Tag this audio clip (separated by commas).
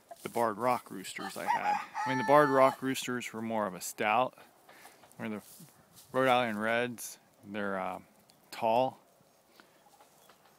Fowl, Chicken, cock-a-doodle-doo